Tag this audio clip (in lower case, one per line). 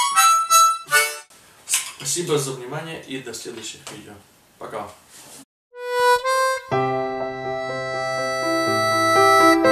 playing harmonica